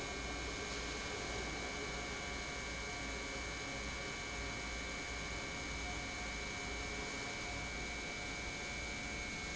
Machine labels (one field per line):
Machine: pump